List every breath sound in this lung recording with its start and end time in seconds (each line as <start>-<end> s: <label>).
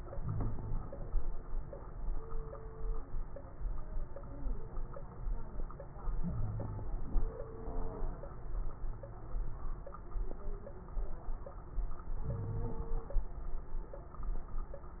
0.00-1.18 s: crackles
0.00-1.21 s: inhalation
6.20-6.92 s: wheeze
12.22-12.79 s: wheeze